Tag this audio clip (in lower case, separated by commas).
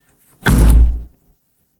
door, home sounds, wood